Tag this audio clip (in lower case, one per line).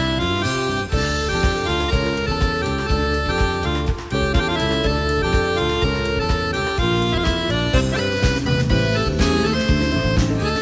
music